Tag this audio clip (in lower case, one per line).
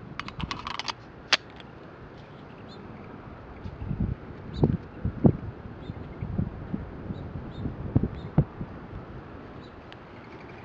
outside, rural or natural